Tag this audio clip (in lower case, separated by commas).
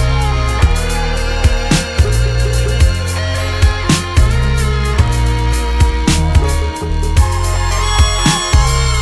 music